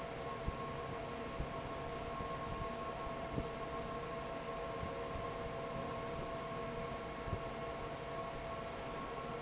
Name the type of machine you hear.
fan